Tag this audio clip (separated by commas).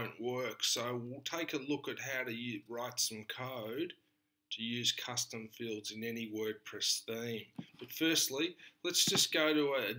Speech